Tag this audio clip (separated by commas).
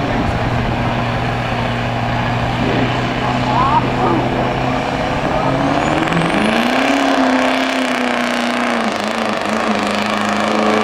Speech, Vehicle